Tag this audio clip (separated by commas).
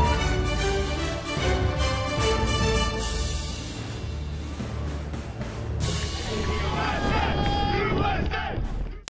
Music, Speech